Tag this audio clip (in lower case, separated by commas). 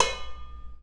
dishes, pots and pans, home sounds